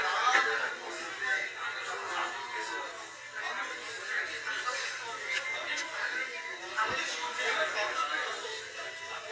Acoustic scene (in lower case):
crowded indoor space